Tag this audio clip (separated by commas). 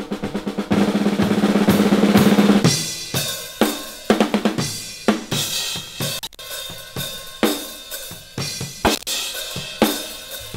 Percussion, Drum kit, Bass drum, Drum roll, Drum, Snare drum, Rimshot